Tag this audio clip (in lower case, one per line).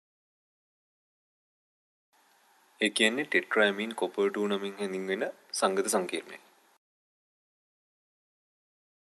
speech